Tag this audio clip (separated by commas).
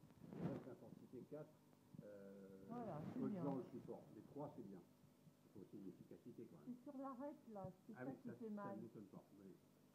Speech